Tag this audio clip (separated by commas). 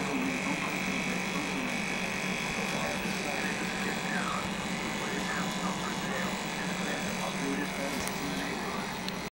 Vehicle, Speech